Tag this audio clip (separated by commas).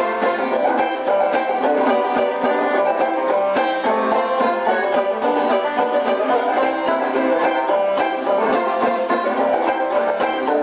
playing banjo, Plucked string instrument, Country, Banjo, Music, Musical instrument